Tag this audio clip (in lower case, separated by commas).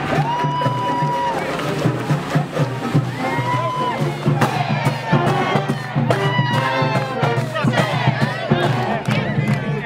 speech, hubbub, music, screaming